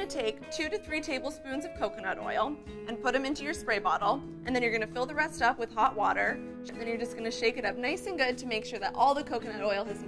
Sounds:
speech, music

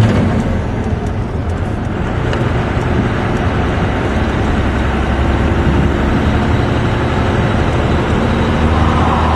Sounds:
car, vehicle, outside, urban or man-made

